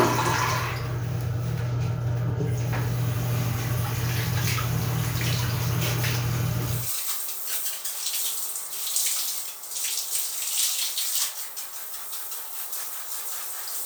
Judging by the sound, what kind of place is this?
restroom